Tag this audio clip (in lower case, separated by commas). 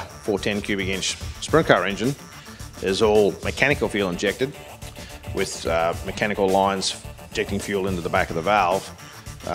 speech, music